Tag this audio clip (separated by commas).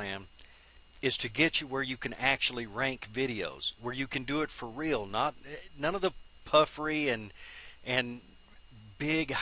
Speech